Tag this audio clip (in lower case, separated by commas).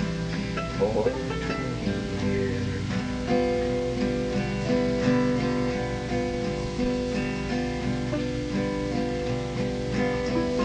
musical instrument, music